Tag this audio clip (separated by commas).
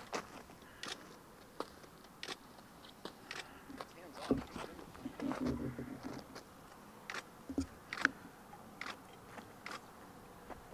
outside, rural or natural